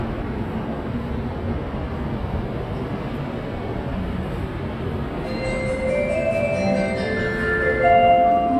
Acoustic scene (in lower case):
subway station